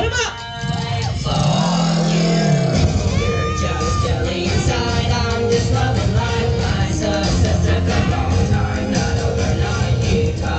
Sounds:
Crowd, inside a large room or hall, Speech, Singing, Music

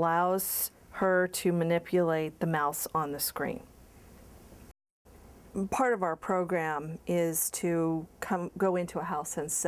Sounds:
Speech

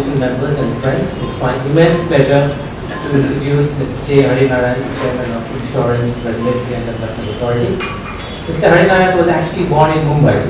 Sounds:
Male speech, monologue, Speech

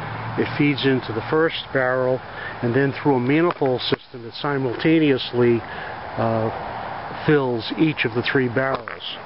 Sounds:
Speech

